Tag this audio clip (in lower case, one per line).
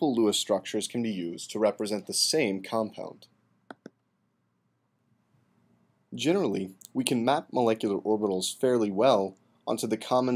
speech